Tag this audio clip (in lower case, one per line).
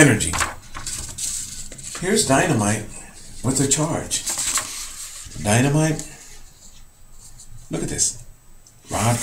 speech
inside a small room